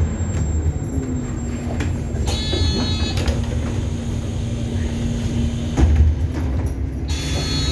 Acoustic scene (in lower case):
bus